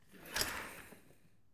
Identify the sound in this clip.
furniture moving